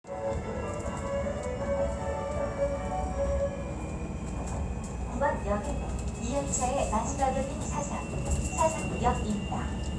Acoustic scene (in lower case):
subway train